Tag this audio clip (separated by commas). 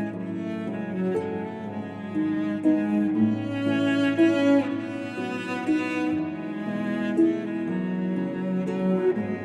Harp, Pizzicato, Bowed string instrument, Cello